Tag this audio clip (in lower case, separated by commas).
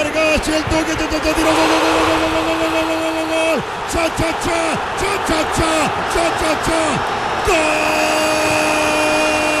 speech